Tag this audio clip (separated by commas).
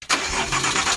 Vehicle, Engine, Engine starting, Car, Motor vehicle (road)